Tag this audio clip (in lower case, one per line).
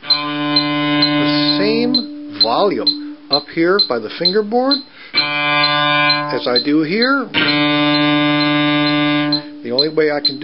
speech
musical instrument
cello
music
inside a small room
bowed string instrument